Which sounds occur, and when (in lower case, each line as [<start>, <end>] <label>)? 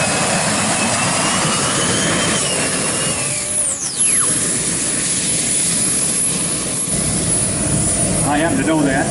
[0.00, 3.46] squeal
[0.00, 9.10] motor vehicle (road)
[0.00, 9.10] wind
[3.66, 4.24] squeal
[8.20, 9.10] male speech